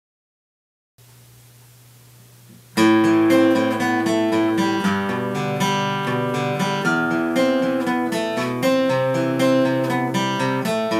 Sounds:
musical instrument, strum, plucked string instrument, acoustic guitar, guitar, music

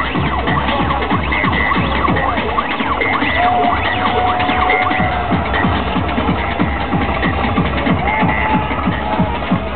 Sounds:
electronic music, music

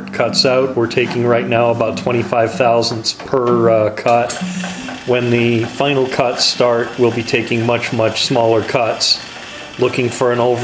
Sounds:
engine, speech, medium engine (mid frequency), idling

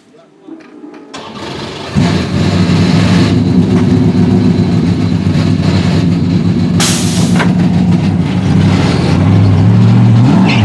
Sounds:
race car, car, vehicle, outside, urban or man-made

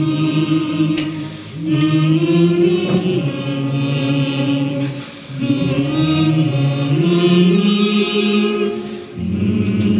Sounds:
music, chant

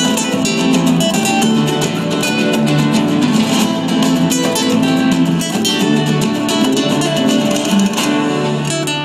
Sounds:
plucked string instrument, guitar, music, musical instrument, strum

